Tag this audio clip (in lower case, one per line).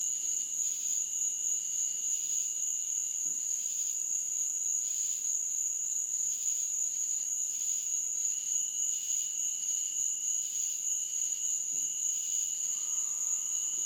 wild animals
animal
frog